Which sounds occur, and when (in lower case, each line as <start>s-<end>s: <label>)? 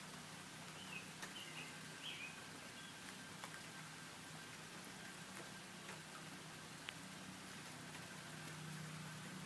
0.0s-9.4s: background noise